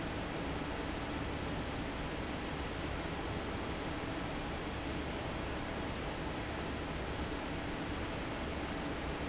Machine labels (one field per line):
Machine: fan